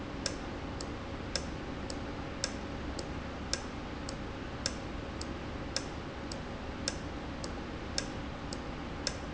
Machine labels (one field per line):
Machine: valve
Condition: normal